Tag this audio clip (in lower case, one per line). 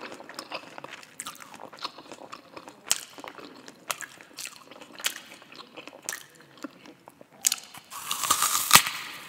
people eating apple